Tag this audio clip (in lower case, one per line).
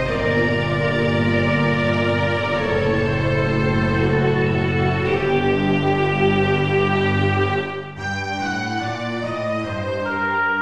music